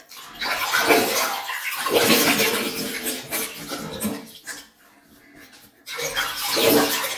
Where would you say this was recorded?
in a restroom